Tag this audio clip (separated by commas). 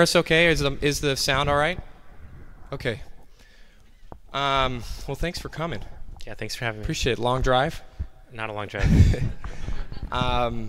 Speech